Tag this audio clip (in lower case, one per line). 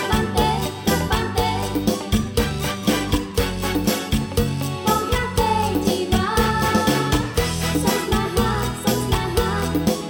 singing
music